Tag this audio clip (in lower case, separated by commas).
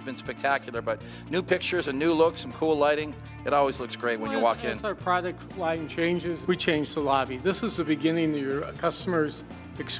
music, speech